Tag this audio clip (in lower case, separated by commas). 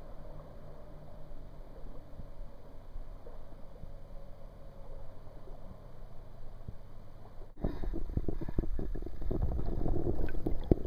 vehicle, water vehicle